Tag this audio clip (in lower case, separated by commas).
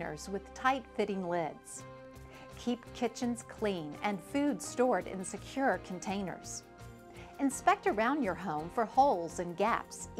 music, speech